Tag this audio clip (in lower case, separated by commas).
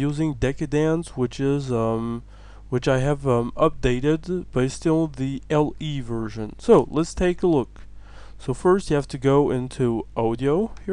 speech